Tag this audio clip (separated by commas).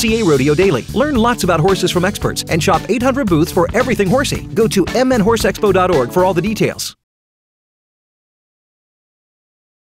Music, Speech